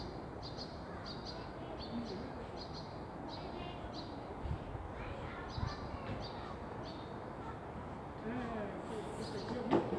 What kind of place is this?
park